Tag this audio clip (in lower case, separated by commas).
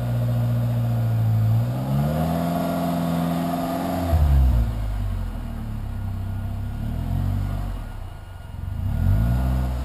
vehicle, car